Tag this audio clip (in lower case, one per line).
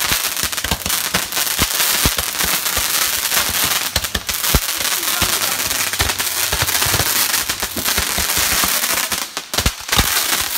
lighting firecrackers